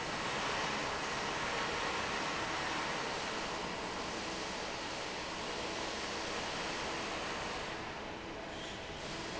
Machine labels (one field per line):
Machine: fan